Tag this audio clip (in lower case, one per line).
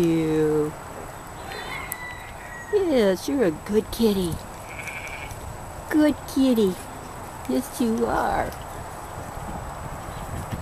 speech
animal